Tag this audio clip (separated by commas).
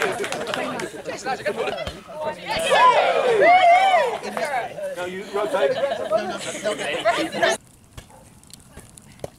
playing volleyball